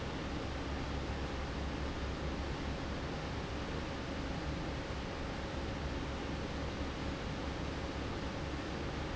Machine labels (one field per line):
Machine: fan